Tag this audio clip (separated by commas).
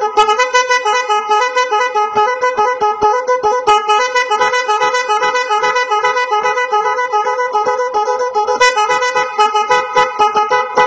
Sound effect